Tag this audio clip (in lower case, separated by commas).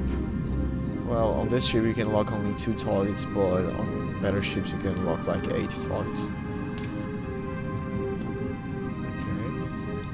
music, speech